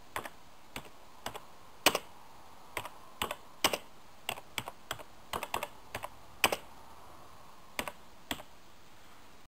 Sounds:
Sound effect, Computer keyboard

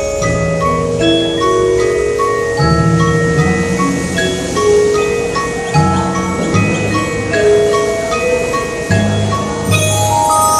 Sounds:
Music, Percussion

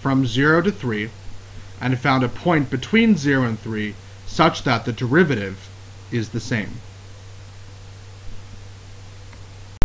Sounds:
monologue, Speech

